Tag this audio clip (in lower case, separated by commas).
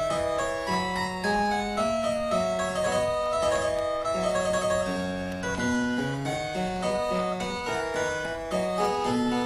piano, keyboard (musical)